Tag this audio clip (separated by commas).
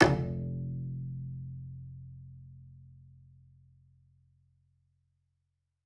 Music, Bowed string instrument, Musical instrument